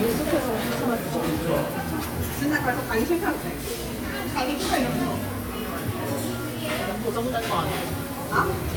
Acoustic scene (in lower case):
restaurant